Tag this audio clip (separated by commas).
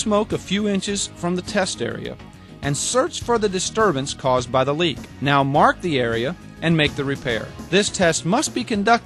Speech, Music